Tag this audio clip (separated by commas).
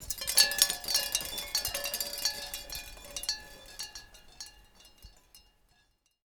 Chime, Wind chime, Bell